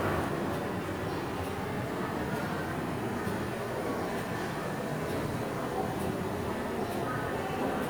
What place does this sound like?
subway station